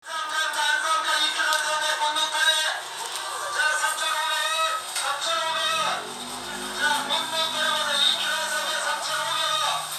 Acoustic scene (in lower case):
crowded indoor space